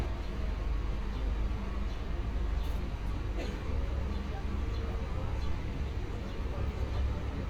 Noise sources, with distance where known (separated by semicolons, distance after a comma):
person or small group talking, far